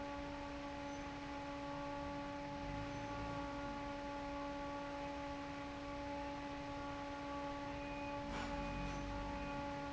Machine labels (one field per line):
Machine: fan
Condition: normal